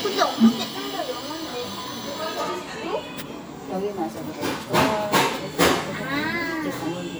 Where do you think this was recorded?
in a cafe